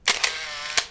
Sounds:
mechanisms, camera

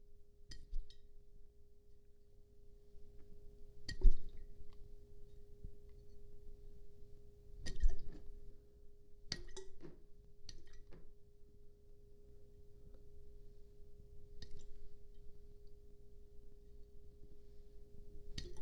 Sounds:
liquid

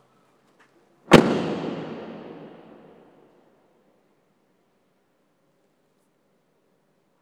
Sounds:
car, motor vehicle (road), vehicle, door, domestic sounds

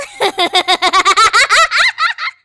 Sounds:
human voice, laughter

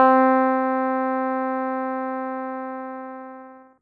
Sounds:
musical instrument, keyboard (musical), music

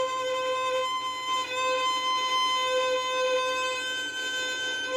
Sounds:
musical instrument, bowed string instrument, music

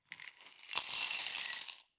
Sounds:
coin (dropping), home sounds, glass

